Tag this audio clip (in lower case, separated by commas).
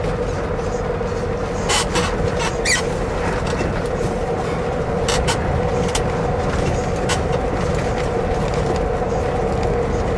outside, urban or man-made, truck, vehicle